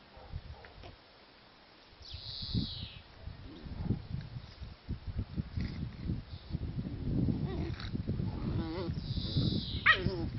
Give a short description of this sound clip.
An insect is singing, the wind is blowing, a dog barks in the background, and a dog yips in the foreground